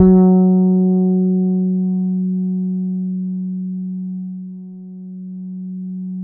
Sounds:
Musical instrument, Guitar, Bass guitar, Plucked string instrument, Music

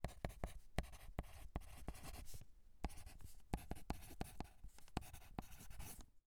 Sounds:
Writing, Domestic sounds

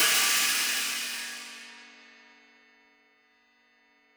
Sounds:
Musical instrument, Hi-hat, Music, Percussion, Cymbal

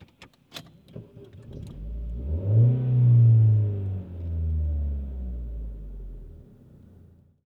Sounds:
Engine, Car, Motor vehicle (road), Engine starting, Vehicle

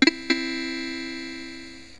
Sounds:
Musical instrument, Music, Keyboard (musical)

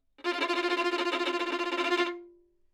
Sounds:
Music, Bowed string instrument, Musical instrument

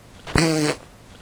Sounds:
Fart

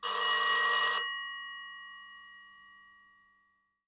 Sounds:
Telephone, Alarm

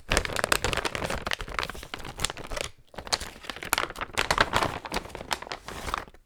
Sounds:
crinkling

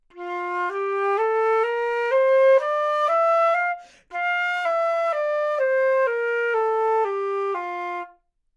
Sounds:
Musical instrument, Music, woodwind instrument

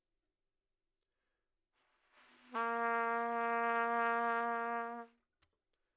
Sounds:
Musical instrument, Trumpet, Brass instrument, Music

